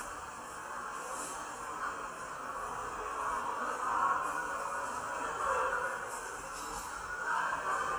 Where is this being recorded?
in a subway station